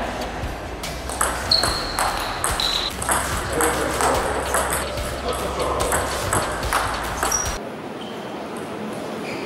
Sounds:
playing table tennis

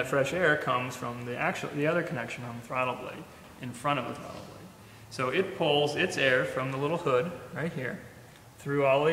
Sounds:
Speech

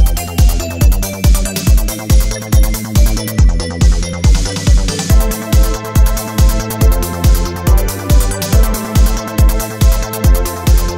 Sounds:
Disco, Music, Trance music

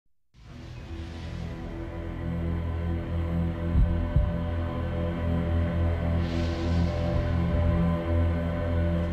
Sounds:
Scary music, Music

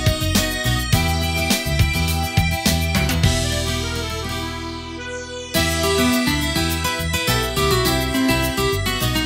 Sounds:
Harmonica, Music

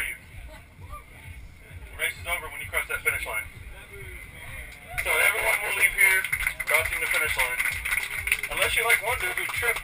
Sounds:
Speech, inside a small room

